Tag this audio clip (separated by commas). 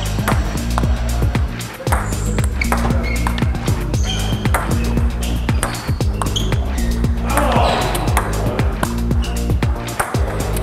playing table tennis